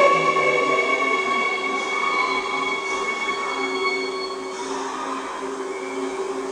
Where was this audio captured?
in a subway station